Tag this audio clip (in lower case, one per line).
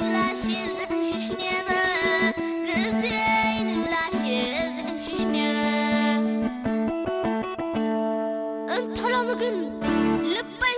music